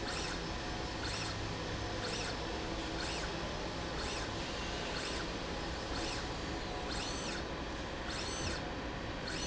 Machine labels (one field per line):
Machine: slide rail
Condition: normal